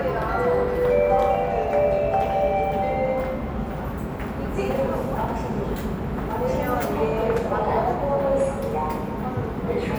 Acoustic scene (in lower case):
subway station